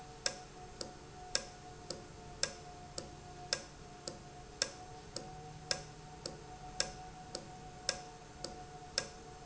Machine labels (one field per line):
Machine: valve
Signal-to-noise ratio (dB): 6 dB